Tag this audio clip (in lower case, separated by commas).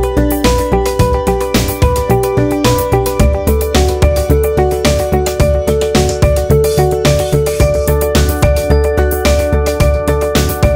music